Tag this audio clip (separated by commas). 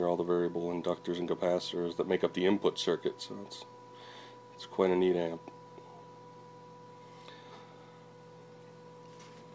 Speech